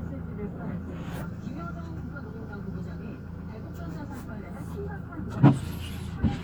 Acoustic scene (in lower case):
car